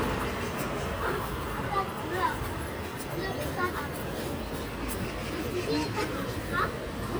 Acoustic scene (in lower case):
residential area